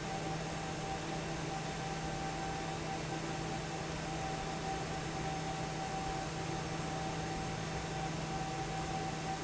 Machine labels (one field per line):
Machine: fan